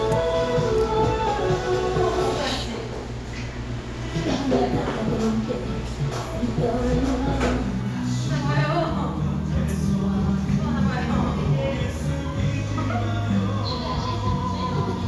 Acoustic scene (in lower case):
cafe